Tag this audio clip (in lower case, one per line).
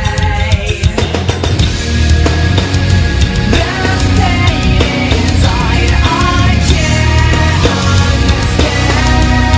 music